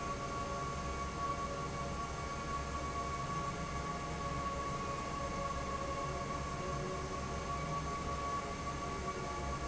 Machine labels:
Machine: fan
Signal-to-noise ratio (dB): -6 dB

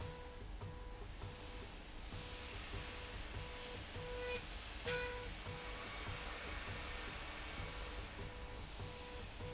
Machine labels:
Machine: slide rail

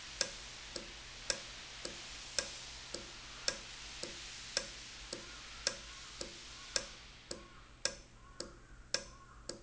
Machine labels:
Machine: valve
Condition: normal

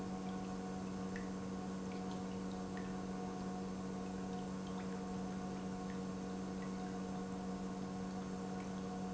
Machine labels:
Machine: pump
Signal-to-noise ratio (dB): 6 dB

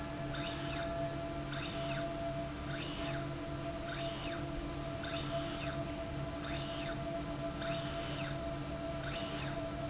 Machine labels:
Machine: slide rail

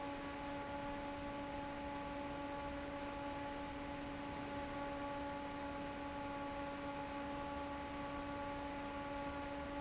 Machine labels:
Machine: fan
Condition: normal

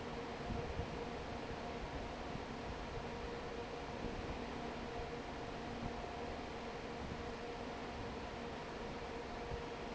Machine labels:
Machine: fan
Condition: normal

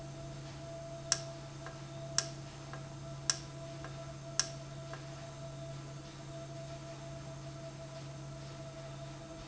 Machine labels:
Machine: valve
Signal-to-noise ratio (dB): 0 dB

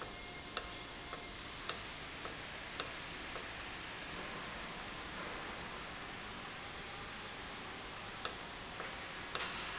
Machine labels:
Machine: valve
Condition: normal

